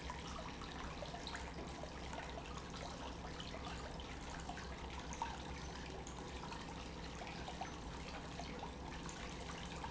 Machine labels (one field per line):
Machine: pump